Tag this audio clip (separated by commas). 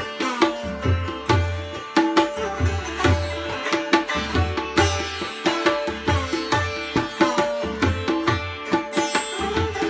playing sitar